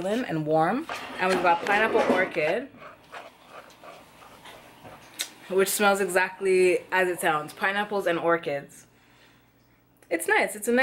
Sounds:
speech

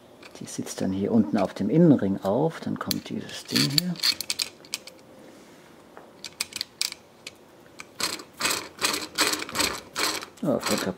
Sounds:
speech

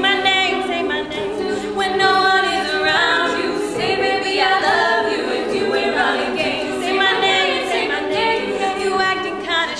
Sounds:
music
a capella
singing

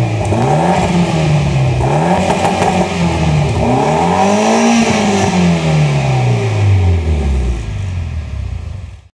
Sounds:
revving

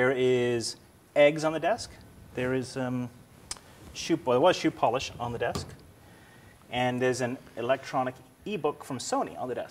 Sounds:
speech

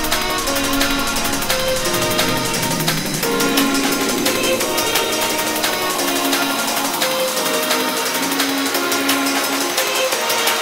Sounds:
music

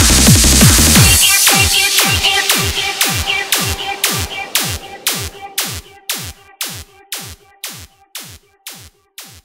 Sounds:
electronic dance music
music

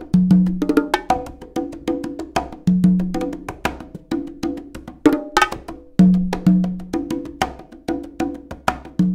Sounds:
playing congas

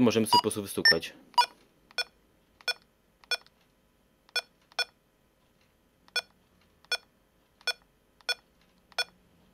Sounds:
metronome

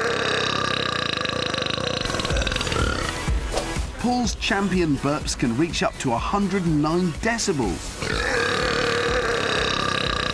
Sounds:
people burping

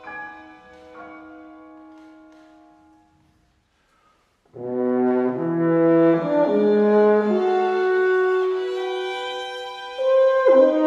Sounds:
brass instrument
french horn
playing french horn

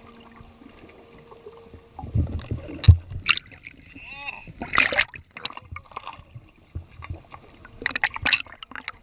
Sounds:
splatter
speech

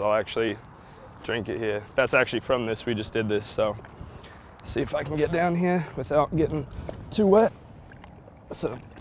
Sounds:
gurgling
stream
speech

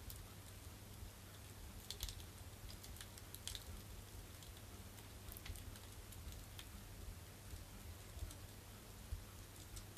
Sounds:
fire crackling

